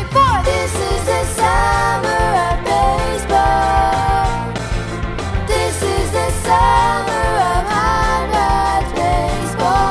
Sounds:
music

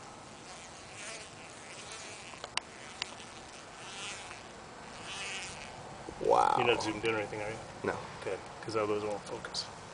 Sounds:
bee or wasp, insect, fly

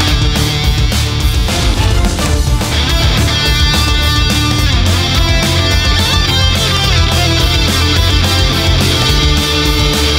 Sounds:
musical instrument, music, bass guitar, guitar, plucked string instrument, electric guitar

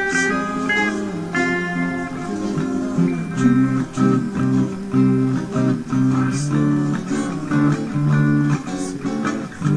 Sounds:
plucked string instrument, guitar, musical instrument, strum, music

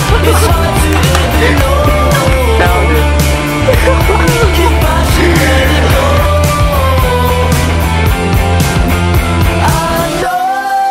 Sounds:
grunge

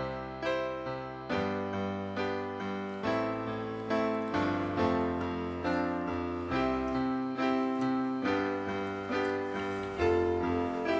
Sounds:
music

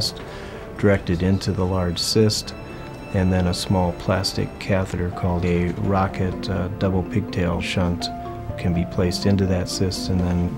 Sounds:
speech, music

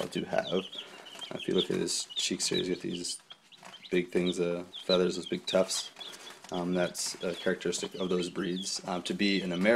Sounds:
cluck, fowl, rooster

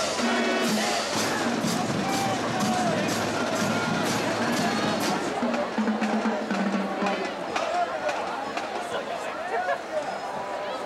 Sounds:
music, speech

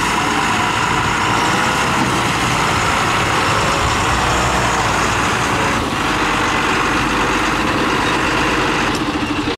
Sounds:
vehicle, car, car passing by, motor vehicle (road)

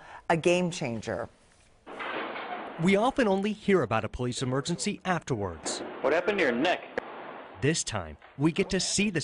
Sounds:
speech

